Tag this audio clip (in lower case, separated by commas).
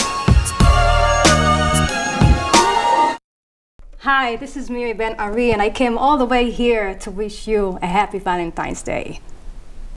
speech, music, fiddle, musical instrument